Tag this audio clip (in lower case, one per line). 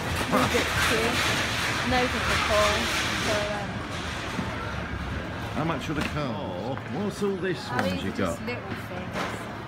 inside a public space
speech